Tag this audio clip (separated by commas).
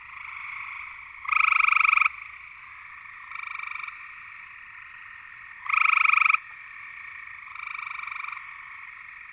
Frog